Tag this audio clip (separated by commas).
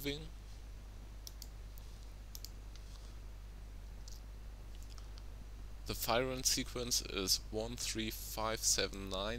Speech